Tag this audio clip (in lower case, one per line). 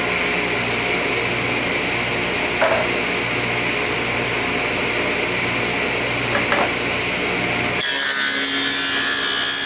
tools
power tool